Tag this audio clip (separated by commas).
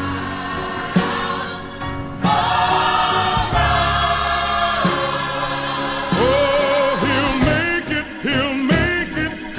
Music, Gospel music, Singing, Soul music